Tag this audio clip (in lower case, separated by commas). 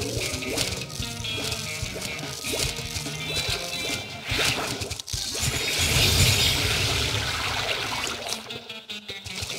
music